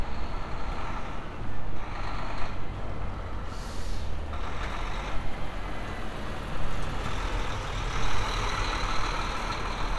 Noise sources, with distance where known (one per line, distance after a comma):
large-sounding engine, near